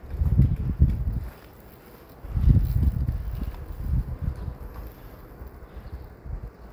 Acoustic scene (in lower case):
residential area